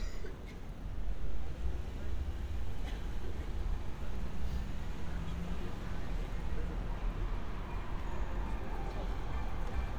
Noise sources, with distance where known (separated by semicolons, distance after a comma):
medium-sounding engine, far; music from a fixed source, far; unidentified human voice, far